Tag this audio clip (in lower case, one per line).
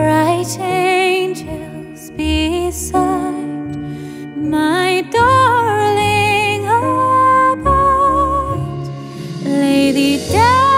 music
lullaby